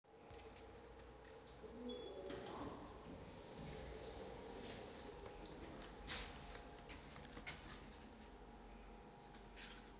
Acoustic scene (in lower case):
elevator